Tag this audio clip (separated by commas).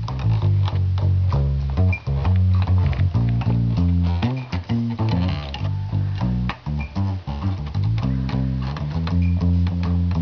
Music